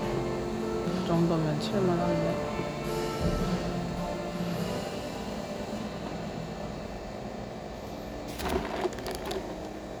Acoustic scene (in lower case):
cafe